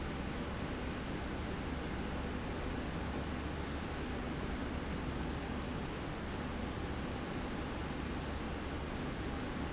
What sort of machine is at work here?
slide rail